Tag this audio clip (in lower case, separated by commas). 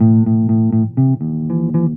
plucked string instrument, music, bass guitar, guitar, musical instrument